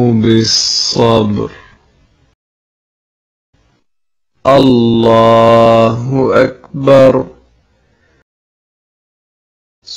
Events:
0.0s-1.8s: chant
0.0s-2.3s: background noise
3.5s-3.8s: background noise
4.3s-8.2s: background noise
4.4s-7.4s: chant
9.8s-9.9s: human voice

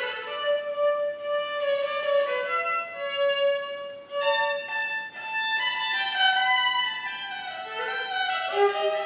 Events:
0.0s-9.0s: music

